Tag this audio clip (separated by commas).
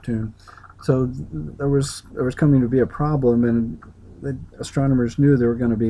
Speech